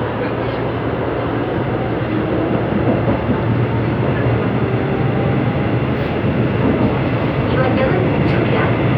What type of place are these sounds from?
subway train